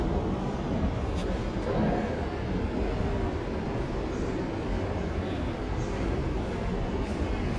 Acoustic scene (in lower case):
subway station